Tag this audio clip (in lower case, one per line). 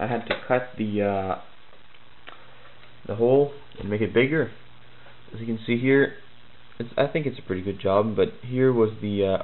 inside a small room
speech